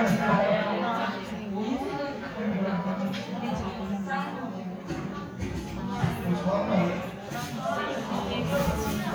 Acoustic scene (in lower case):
crowded indoor space